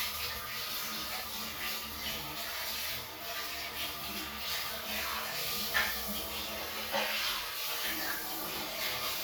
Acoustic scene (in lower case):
restroom